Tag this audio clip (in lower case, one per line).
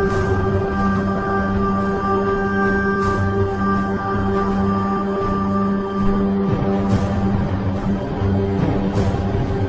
music